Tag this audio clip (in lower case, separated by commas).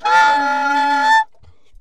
wind instrument, musical instrument, music